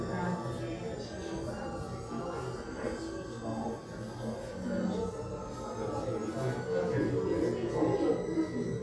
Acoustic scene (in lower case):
crowded indoor space